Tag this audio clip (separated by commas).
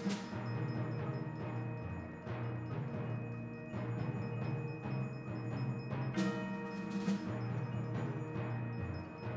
Music, Percussion